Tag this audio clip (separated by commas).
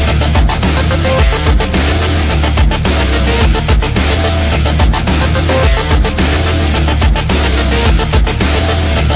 Music, Rock music